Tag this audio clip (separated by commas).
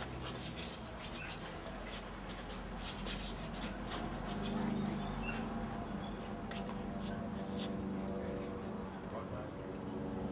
Speech